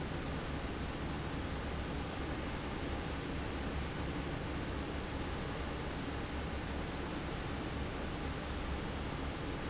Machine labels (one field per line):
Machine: fan